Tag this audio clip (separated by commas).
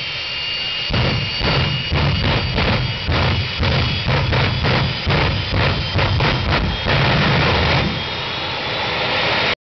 Motor vehicle (road), Vehicle